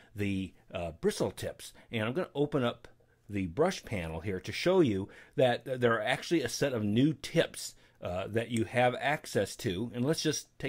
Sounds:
speech

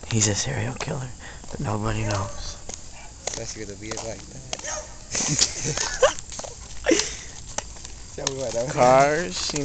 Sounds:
footsteps
speech

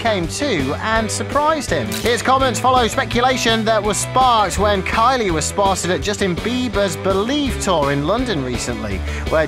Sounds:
speech
music

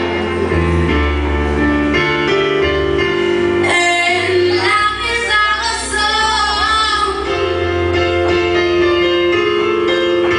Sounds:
music
female singing

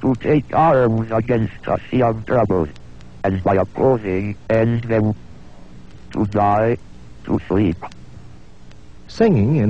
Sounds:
speech synthesizer
speech

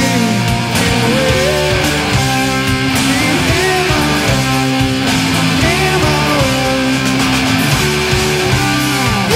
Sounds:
punk rock
singing

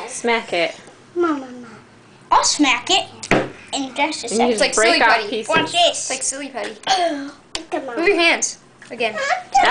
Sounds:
speech

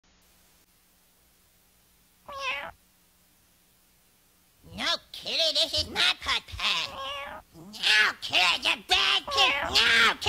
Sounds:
cat
speech

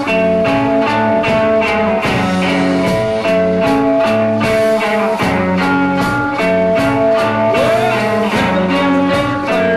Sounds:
music

